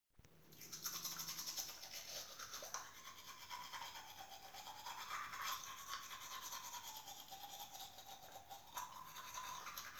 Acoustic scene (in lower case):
restroom